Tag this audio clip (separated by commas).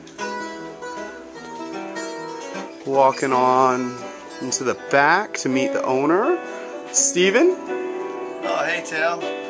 Plucked string instrument, Acoustic guitar, Musical instrument, Music, Speech, Strum, Guitar